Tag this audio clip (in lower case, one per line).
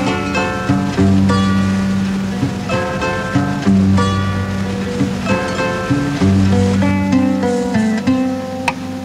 music